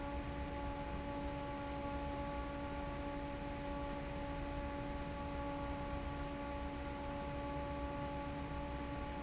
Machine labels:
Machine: fan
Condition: normal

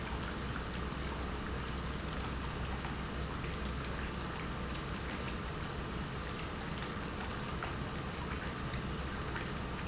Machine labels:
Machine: pump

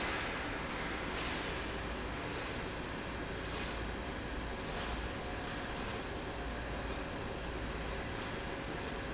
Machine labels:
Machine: slide rail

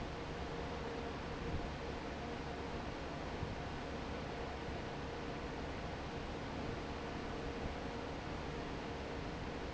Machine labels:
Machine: fan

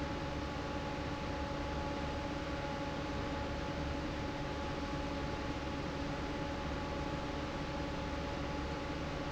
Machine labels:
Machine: fan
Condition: normal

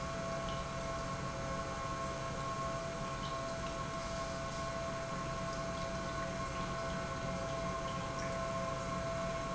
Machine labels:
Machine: pump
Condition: normal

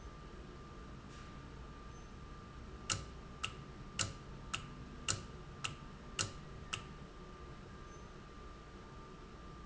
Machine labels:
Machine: valve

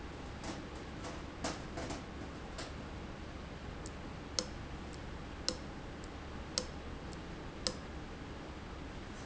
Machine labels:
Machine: valve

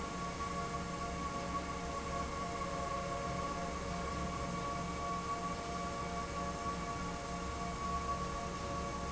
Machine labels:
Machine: fan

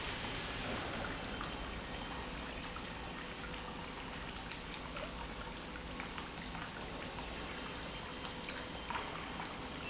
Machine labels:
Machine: pump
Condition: normal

